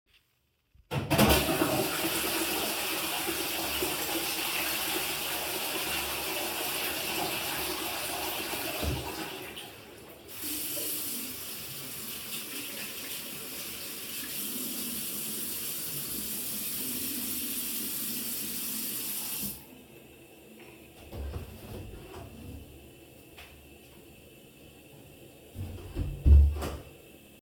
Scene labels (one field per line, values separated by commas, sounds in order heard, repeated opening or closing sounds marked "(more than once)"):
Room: bathroom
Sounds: toilet flushing, running water, door (more than once)